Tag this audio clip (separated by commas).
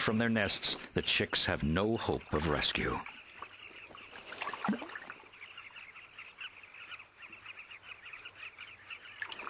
Frog